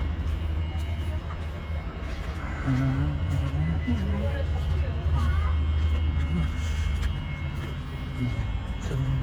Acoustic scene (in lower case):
park